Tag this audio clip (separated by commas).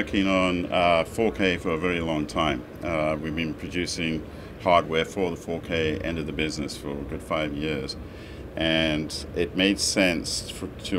Speech